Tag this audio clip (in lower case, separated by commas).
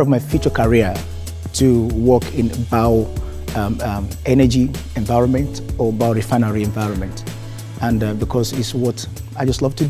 speech, music